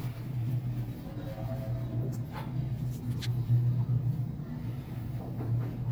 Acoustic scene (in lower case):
elevator